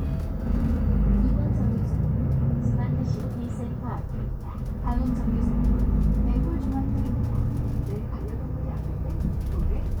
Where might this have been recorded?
on a bus